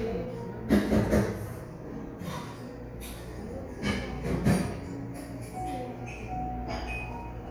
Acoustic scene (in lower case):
cafe